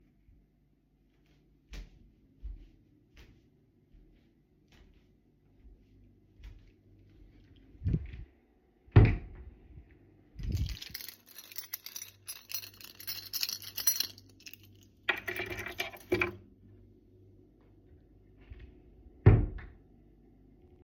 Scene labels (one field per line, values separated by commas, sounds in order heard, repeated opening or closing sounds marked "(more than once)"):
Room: bedroom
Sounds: footsteps, wardrobe or drawer (more than once), keys